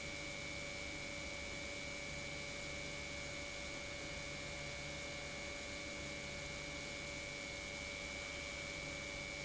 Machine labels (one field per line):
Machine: pump